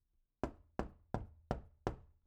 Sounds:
Wood, Knock, Door, Domestic sounds

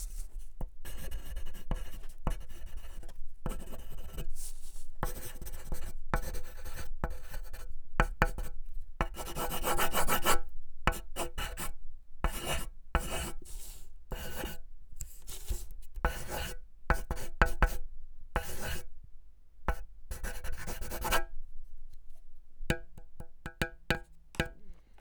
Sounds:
Domestic sounds, Writing

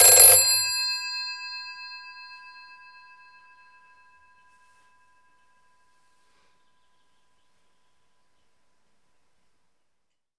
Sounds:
Alarm, Telephone

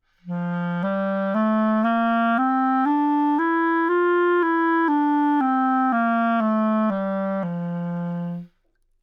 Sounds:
Wind instrument, Music, Musical instrument

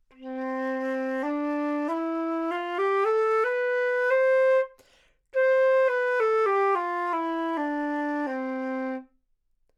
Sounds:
woodwind instrument, Musical instrument, Music

